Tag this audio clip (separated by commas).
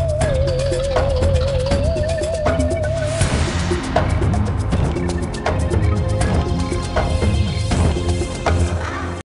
Music, Soundtrack music